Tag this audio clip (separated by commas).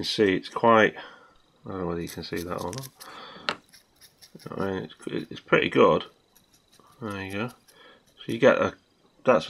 inside a small room, Speech